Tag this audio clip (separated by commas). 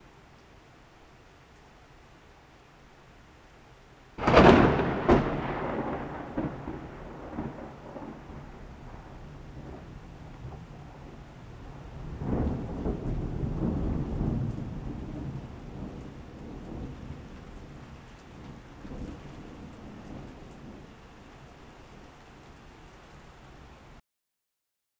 Thunder, Thunderstorm